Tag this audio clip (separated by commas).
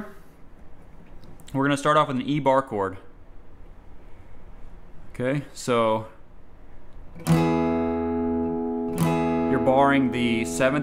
Strum, Acoustic guitar, Musical instrument, Guitar, Plucked string instrument, Speech, Music